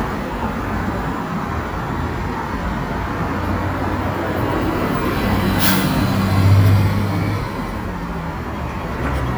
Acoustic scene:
street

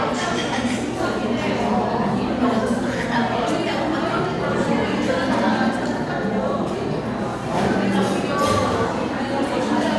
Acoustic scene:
crowded indoor space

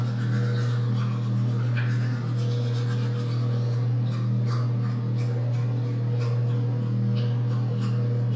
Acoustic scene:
restroom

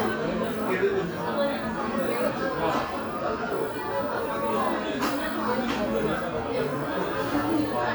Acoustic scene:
crowded indoor space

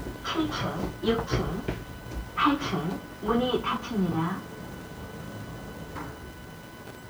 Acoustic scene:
elevator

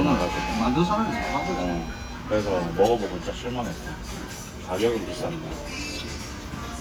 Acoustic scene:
restaurant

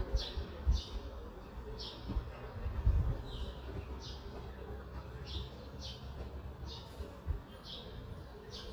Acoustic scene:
residential area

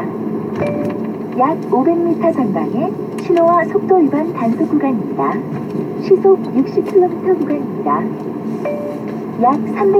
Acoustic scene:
car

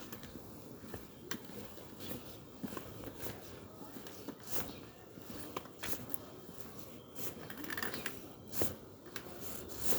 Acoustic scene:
residential area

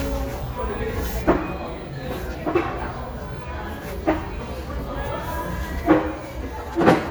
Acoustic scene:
cafe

